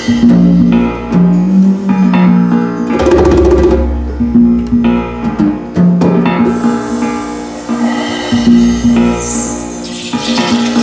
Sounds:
drum, percussion

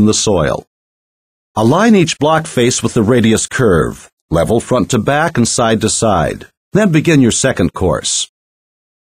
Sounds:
speech

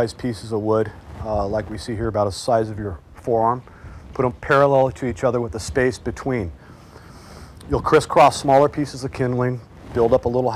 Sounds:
speech

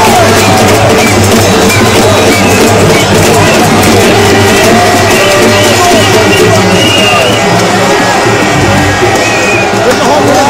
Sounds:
speech, music

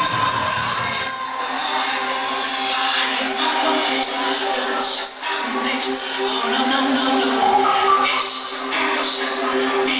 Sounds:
house music, music

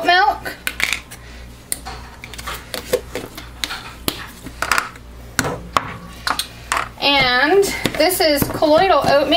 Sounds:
speech, inside a small room

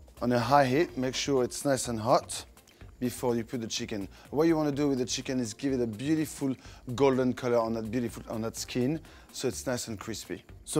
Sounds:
speech

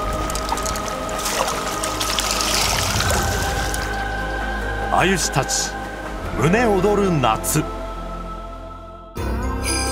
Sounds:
speech, music, stream

